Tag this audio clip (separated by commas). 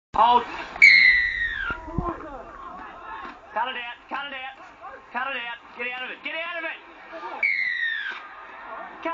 outside, urban or man-made, inside a small room, Speech